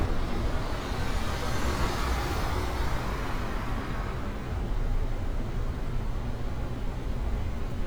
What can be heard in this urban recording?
engine of unclear size